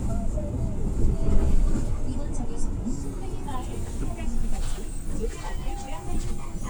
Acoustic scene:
bus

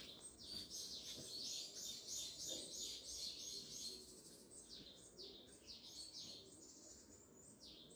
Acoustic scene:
park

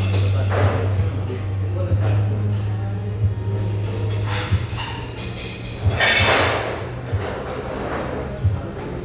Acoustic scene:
cafe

